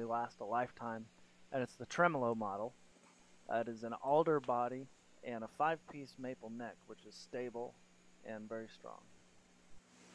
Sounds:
speech

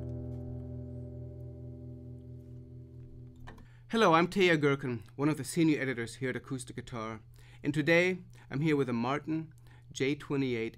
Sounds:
musical instrument, guitar, speech, acoustic guitar, strum, music, plucked string instrument

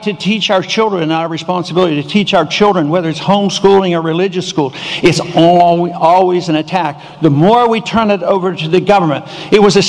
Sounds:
monologue, male speech, speech

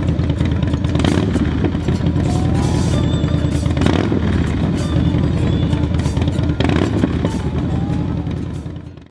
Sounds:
music, vehicle, motorcycle

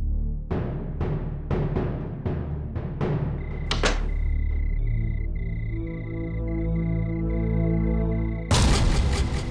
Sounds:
timpani, music

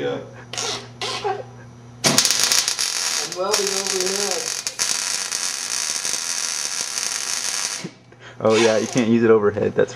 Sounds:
speech, inside a large room or hall

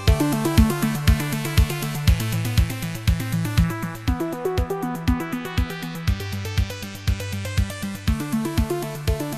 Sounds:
music

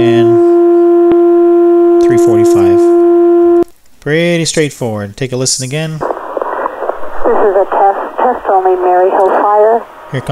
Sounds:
speech

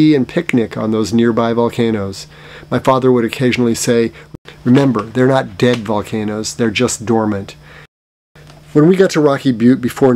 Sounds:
speech

